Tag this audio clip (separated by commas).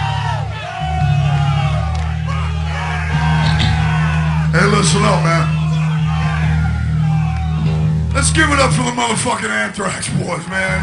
Speech, Music